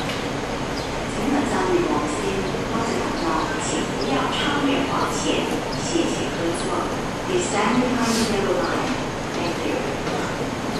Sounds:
Speech

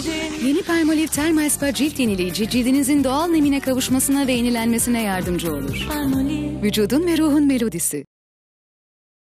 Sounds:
Speech, Music, Jingle (music)

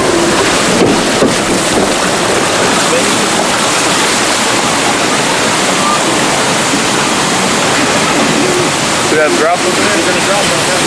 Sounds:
Water, Speech

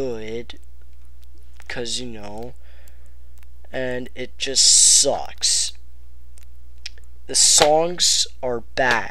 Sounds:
Speech

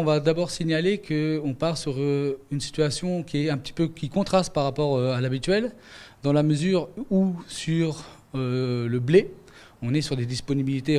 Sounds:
Speech

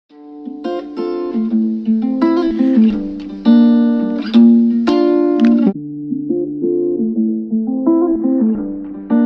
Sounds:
Music, Ukulele

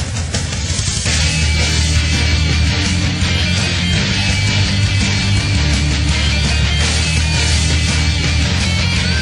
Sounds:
Music

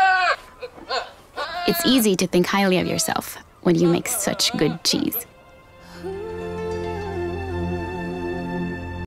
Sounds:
Music, Speech

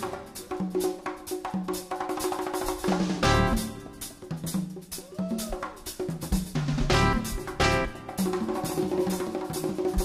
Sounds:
inside a large room or hall, Music, inside a public space

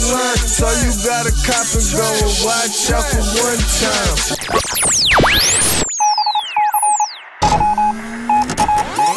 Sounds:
Hip hop music, Music

